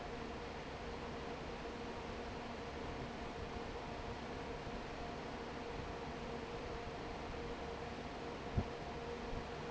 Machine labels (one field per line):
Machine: fan